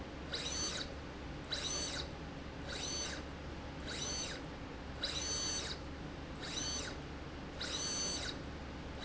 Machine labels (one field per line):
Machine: slide rail